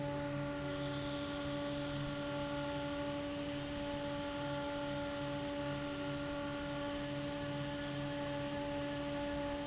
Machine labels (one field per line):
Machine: fan